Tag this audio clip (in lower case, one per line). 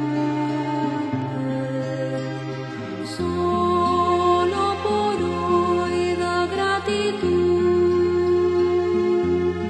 new-age music
music